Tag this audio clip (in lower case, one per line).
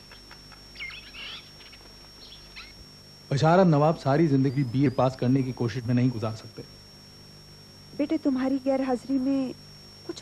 bird vocalization
bird
tweet